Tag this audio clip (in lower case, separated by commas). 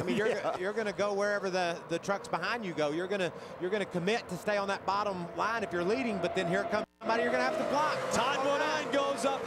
car, speech, vehicle